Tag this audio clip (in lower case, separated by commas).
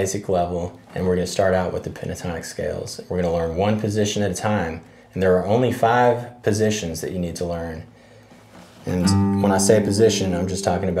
music, speech